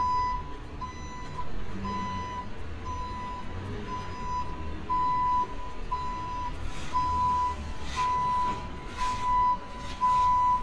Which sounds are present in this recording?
unidentified alert signal